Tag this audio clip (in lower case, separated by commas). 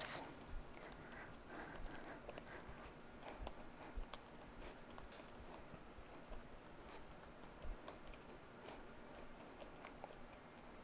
inside a small room